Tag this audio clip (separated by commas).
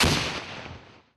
Explosion